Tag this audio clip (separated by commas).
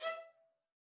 Musical instrument, Music, Bowed string instrument